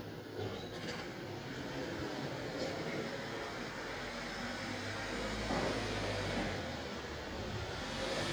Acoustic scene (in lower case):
residential area